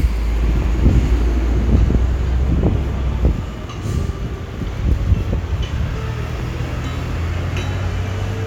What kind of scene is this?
street